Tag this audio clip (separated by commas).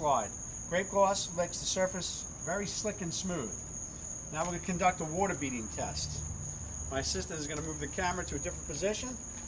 Speech